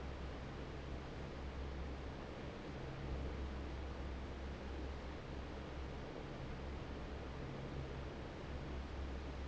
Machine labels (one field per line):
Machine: fan